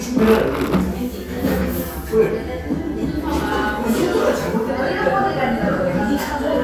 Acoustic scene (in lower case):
cafe